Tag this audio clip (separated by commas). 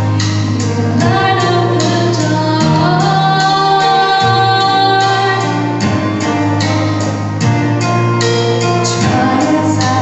Music, Female singing